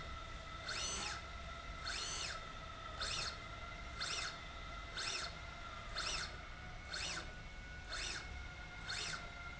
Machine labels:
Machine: slide rail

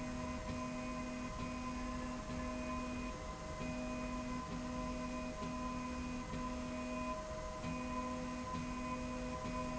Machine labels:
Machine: slide rail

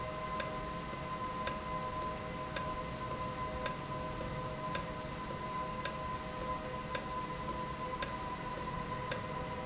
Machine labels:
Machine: valve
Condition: normal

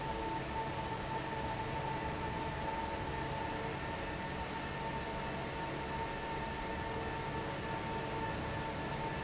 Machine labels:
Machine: fan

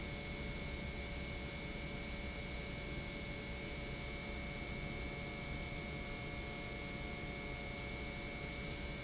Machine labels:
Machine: pump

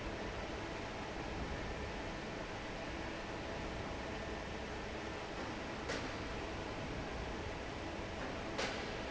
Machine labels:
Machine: fan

